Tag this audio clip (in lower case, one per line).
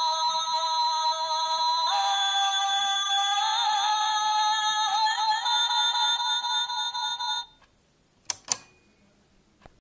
tick